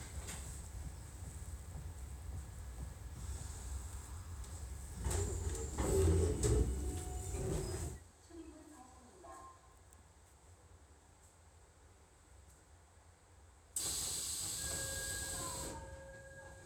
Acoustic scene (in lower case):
subway train